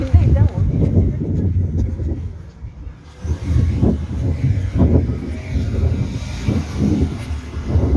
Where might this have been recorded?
in a residential area